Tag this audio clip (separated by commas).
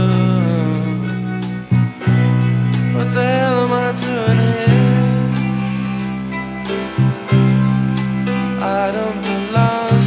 playing bass guitar